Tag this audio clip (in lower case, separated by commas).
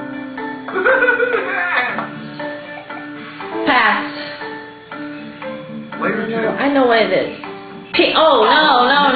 speech, music